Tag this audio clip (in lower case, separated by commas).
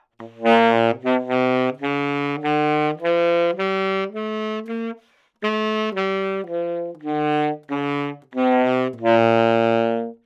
wind instrument, musical instrument, music